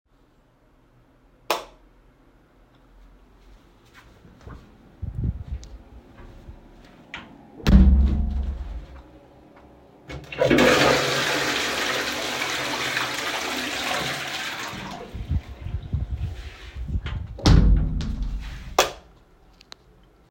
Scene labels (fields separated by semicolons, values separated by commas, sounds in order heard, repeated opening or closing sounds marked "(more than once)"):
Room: bathroom; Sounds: light switch, door (more than once), toilet flushing